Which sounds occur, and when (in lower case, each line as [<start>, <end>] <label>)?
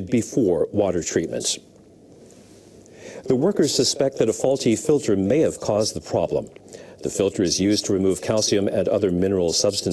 [0.00, 1.57] man speaking
[0.00, 9.92] mechanisms
[1.17, 1.28] tick
[1.68, 1.77] generic impact sounds
[2.06, 2.72] breathing
[2.80, 2.89] tick
[2.83, 3.19] breathing
[3.19, 6.62] man speaking
[4.07, 4.14] tick
[6.65, 6.93] breathing
[6.98, 9.92] man speaking